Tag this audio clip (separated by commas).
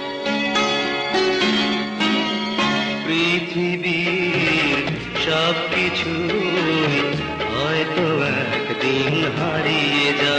Music